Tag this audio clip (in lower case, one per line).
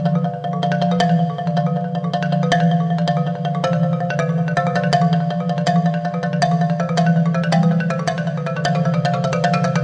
music
xylophone